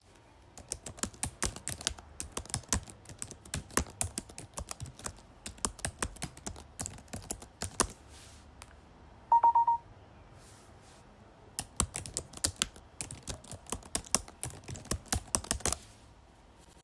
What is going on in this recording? I was chatting on the laptop, got a message and continued chatting